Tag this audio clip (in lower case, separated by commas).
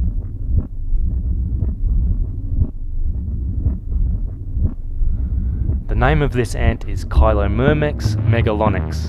outside, rural or natural, music, speech